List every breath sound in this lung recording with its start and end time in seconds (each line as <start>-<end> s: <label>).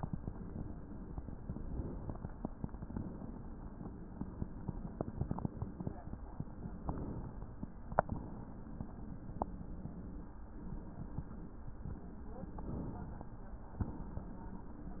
1.44-2.71 s: inhalation
2.73-3.71 s: exhalation
6.81-8.19 s: inhalation
8.19-9.45 s: exhalation
12.54-13.79 s: inhalation
13.79-14.88 s: exhalation